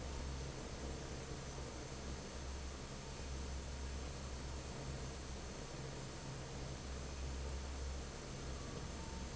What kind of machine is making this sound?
fan